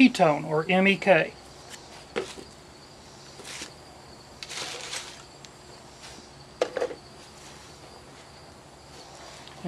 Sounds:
speech

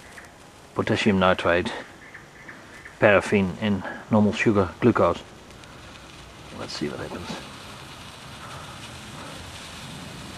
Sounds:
speech

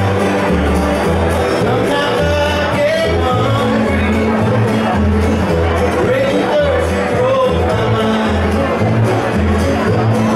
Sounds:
music
crowd

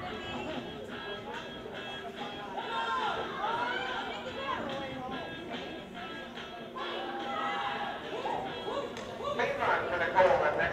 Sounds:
speech
music

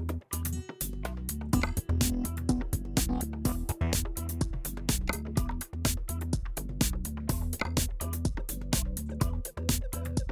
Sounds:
music

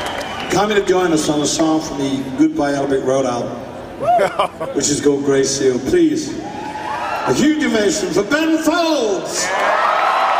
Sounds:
speech

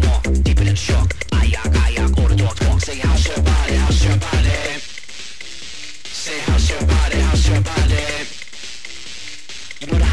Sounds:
music
electronic music

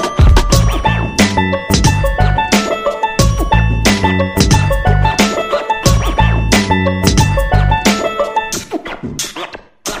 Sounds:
music

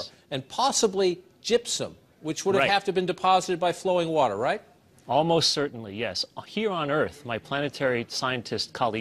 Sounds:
speech

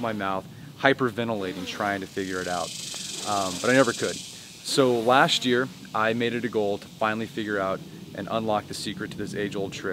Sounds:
speech

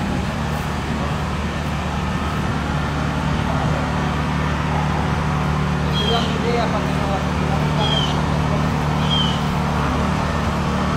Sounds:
speech

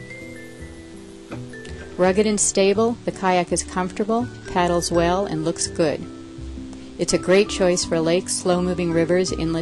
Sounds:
rowboat
boat

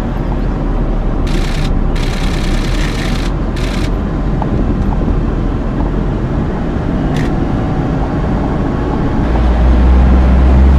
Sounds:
vehicle
car

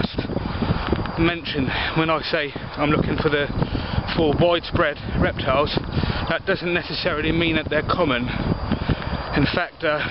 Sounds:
speech
animal
outside, rural or natural

